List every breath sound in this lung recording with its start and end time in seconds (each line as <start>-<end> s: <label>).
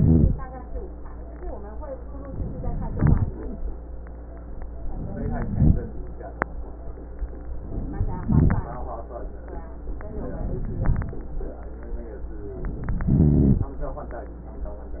0.00-0.34 s: rhonchi
2.24-2.94 s: inhalation
2.94-3.38 s: exhalation
2.94-3.38 s: rhonchi
4.90-5.54 s: inhalation
5.08-5.52 s: rhonchi
5.54-6.00 s: exhalation
5.54-6.00 s: rhonchi
7.65-8.26 s: inhalation
8.26-8.73 s: exhalation
8.26-8.73 s: rhonchi
10.19-10.76 s: inhalation
10.76-11.23 s: exhalation
10.76-11.23 s: rhonchi
13.07-13.74 s: inhalation
13.07-13.74 s: rhonchi